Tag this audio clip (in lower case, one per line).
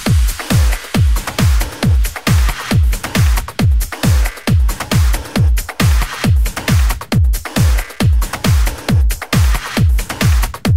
music